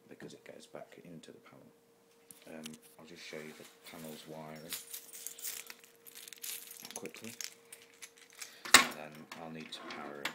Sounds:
Speech

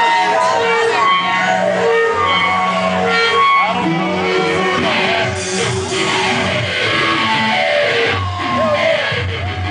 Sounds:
Music, Speech

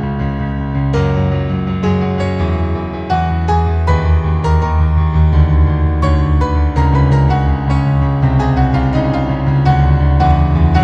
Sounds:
Music

